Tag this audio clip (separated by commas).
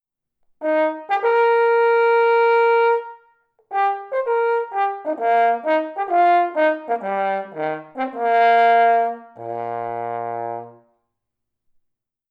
Music, Musical instrument, Brass instrument